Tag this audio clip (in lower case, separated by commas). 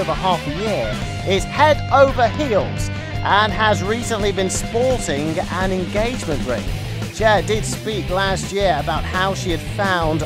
speech, music